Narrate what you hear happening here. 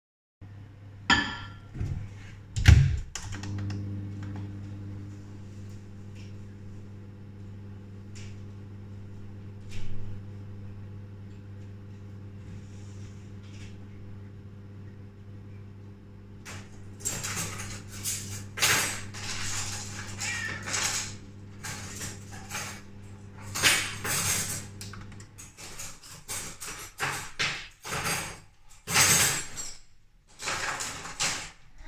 i put a cup of tea in the microwave than i play around with the cutleries in the drawer